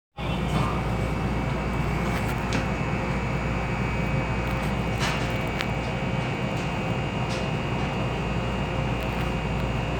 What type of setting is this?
subway train